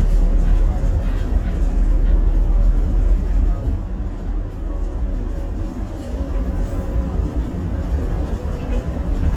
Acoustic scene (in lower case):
bus